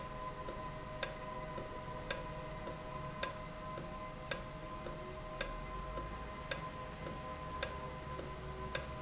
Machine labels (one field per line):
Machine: valve